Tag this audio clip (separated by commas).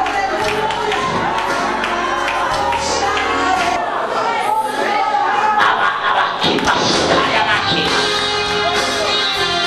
Music, Singing, Speech